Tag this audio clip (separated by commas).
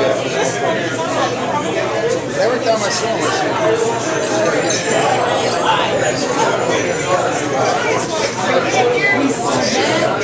Speech